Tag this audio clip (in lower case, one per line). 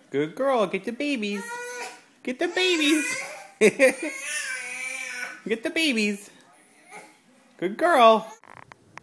inside a small room
speech